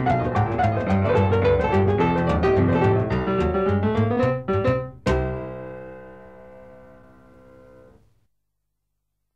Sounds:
piano
music
keyboard (musical)

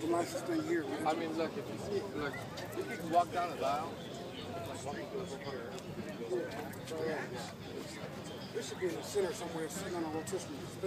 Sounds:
speech

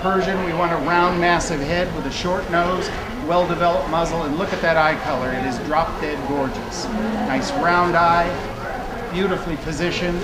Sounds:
speech

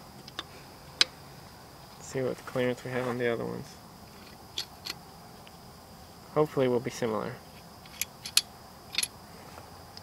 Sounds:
speech

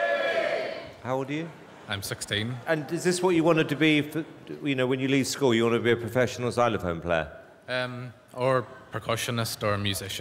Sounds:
speech

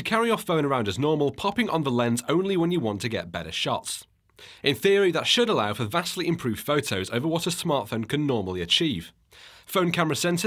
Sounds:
speech

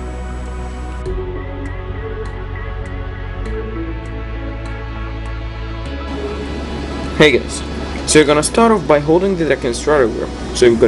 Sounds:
music
speech

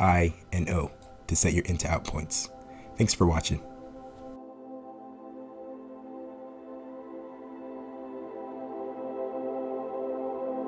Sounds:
speech
ambient music
music

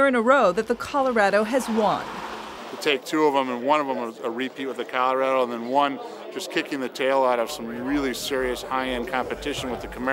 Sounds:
car
vehicle
speech

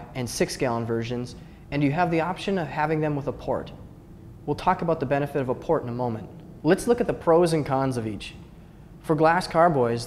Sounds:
speech

